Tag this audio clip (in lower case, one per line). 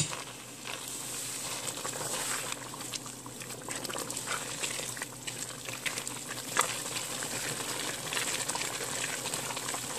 sizzle
stir